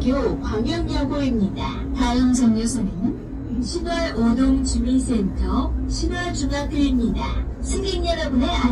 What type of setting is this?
bus